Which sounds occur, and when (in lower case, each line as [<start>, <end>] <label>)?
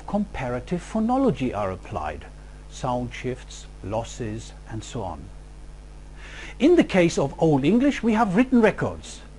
[0.01, 9.35] mechanisms
[0.07, 2.25] male speech
[2.73, 3.70] male speech
[3.87, 4.50] male speech
[4.69, 5.18] male speech
[6.17, 6.56] breathing
[6.57, 9.22] male speech